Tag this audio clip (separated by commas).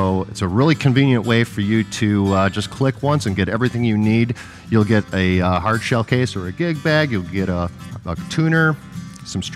Music, Speech